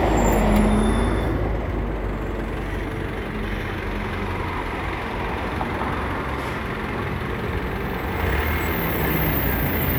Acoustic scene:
street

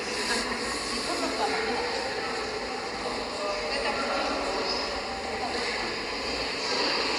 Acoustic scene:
subway station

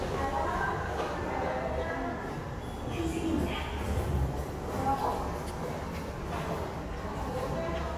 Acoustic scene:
subway station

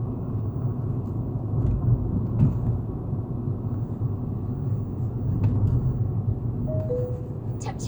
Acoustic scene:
car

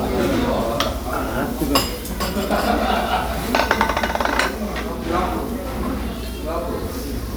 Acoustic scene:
restaurant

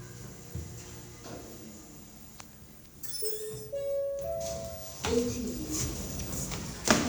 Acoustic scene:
elevator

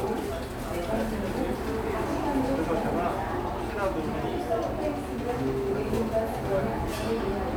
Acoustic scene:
cafe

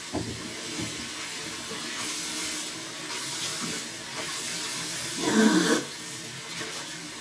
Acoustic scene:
restroom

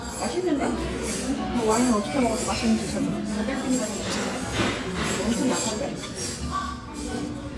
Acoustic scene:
restaurant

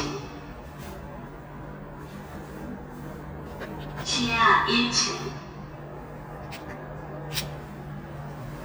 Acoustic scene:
elevator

